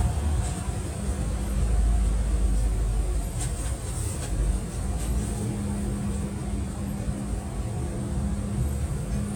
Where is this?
on a bus